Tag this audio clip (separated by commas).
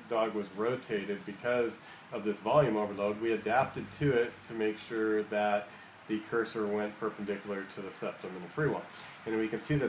Speech